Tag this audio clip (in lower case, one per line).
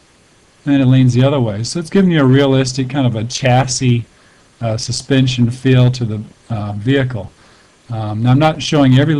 speech